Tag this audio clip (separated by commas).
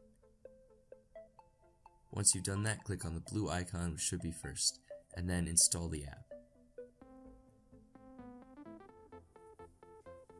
Speech